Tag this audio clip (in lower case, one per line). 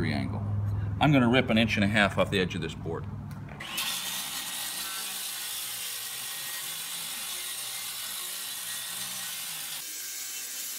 speech